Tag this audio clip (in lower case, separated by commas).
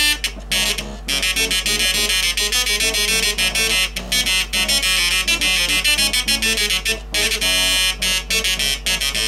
music, printer, inside a small room